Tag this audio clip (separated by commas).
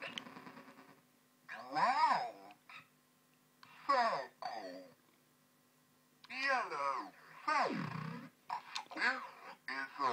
inside a small room, Speech